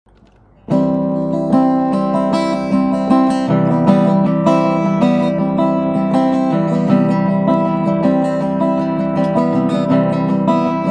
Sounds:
music, acoustic guitar

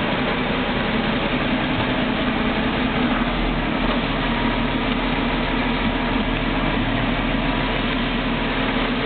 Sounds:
engine, vehicle, heavy engine (low frequency)

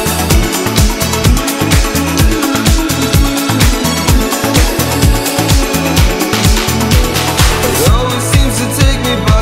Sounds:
music

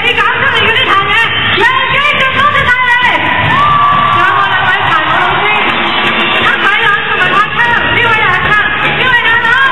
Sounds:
speech

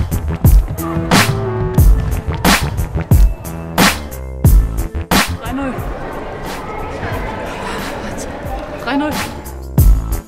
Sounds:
speech, music, inside a large room or hall

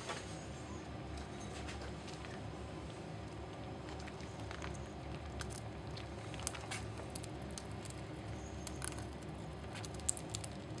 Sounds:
rodents, patter

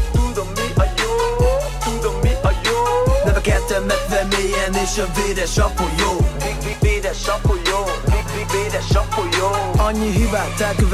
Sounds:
funk, music, pop music, dance music

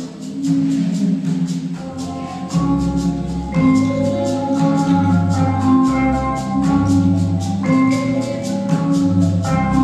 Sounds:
vibraphone, musical instrument, percussion, classical music, music, marimba, orchestra

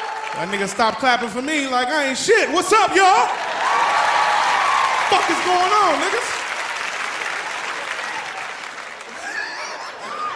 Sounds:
speech

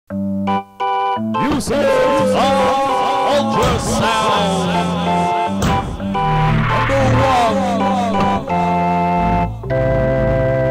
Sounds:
music, speech

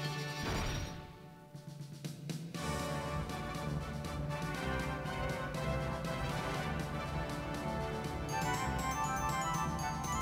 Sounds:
music

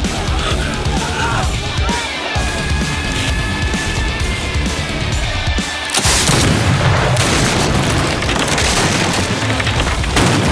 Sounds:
firing muskets

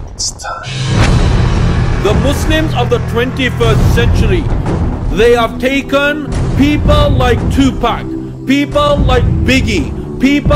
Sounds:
music, man speaking, speech

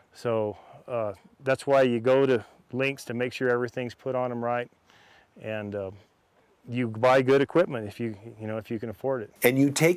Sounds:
speech

